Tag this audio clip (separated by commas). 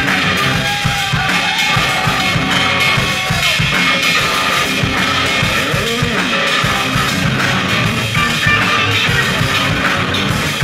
Guitar, Drum kit, Music, Rock music, Musical instrument, playing drum kit